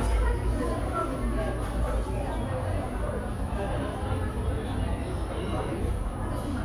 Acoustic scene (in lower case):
cafe